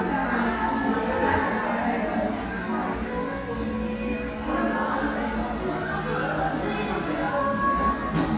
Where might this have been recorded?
in a crowded indoor space